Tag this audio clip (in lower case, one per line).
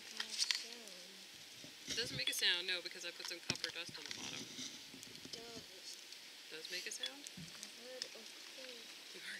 speech